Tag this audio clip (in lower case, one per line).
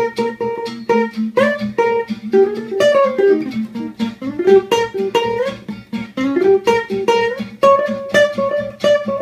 soul music
music